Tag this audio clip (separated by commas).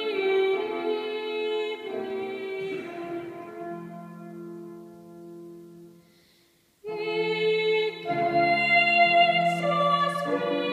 inside a large room or hall, Music